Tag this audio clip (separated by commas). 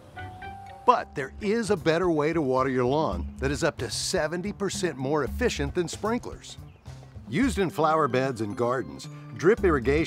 Speech, Music